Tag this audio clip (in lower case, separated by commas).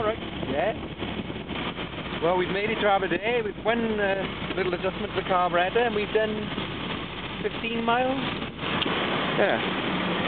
vehicle, car, speech